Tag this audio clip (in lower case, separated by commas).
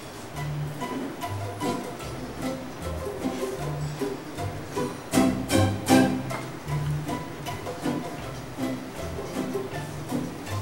pizzicato